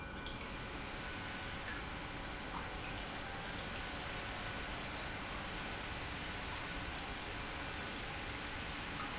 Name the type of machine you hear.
pump